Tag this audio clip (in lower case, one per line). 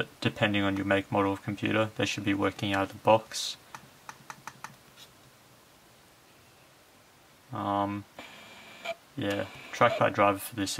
speech